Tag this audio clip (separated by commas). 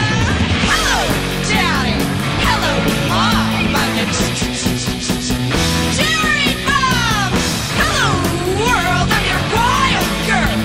Psychedelic rock